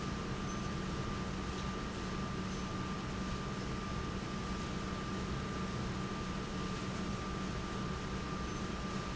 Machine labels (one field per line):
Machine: pump